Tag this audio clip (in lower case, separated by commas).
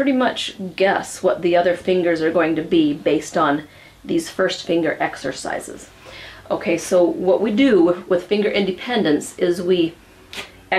speech